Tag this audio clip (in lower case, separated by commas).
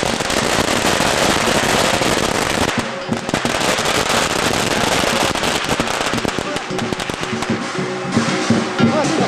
fireworks, music